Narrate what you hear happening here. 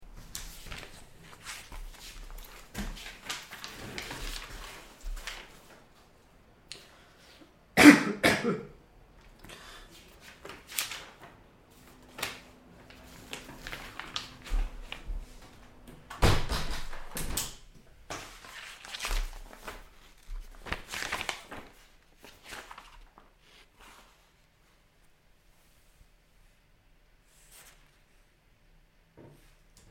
I was reading a newspaper, then suddenly stopped. With it still in my hand, I silently walked to the window and closed it. Afterwards, I opened the newspaper while I was still standing near the window.